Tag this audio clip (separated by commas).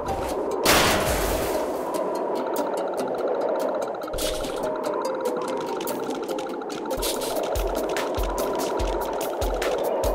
Music